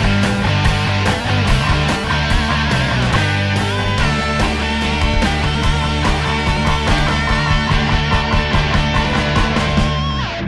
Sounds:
Music

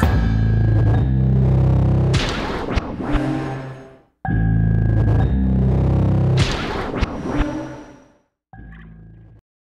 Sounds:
Music

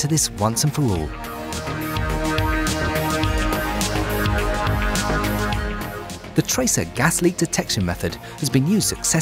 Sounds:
Speech, Music

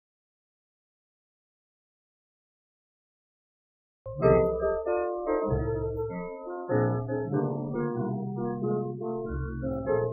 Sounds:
Music

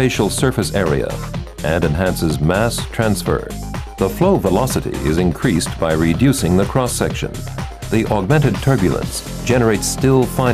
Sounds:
Speech, Music

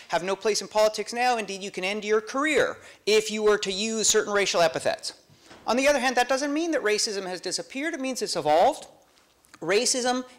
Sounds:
Speech

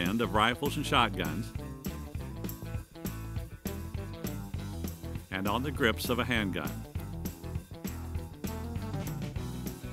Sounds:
Music, Speech

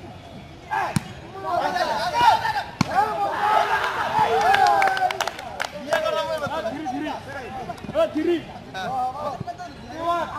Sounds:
playing volleyball

